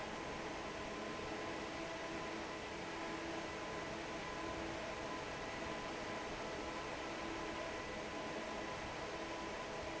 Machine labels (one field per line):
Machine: fan